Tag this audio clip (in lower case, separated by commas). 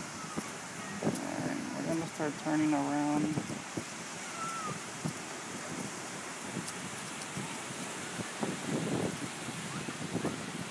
outside, rural or natural, speech, ocean burbling, ocean